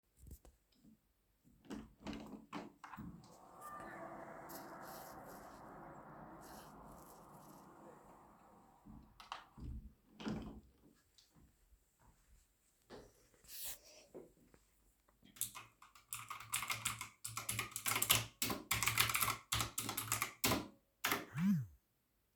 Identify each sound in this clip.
window, keyboard typing